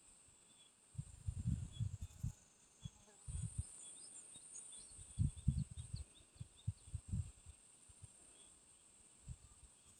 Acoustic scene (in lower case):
park